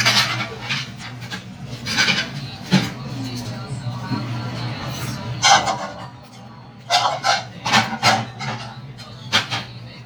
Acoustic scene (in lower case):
restaurant